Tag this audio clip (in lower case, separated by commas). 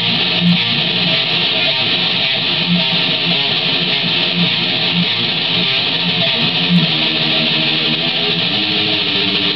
music, guitar, musical instrument, electric guitar